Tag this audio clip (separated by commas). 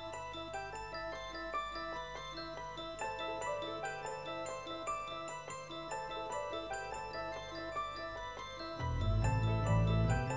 Music